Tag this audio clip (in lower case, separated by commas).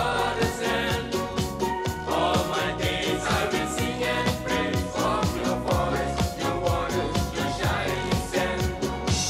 playing steelpan